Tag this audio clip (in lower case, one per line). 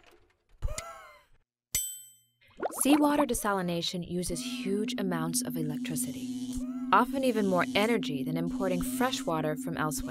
water
speech
music